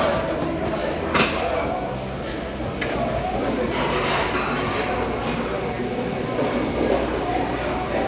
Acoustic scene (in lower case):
restaurant